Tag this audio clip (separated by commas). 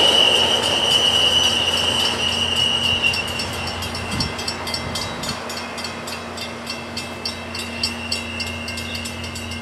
Train, Vehicle, Railroad car, Rail transport